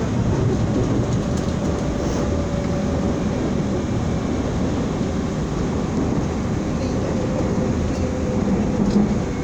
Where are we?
on a subway train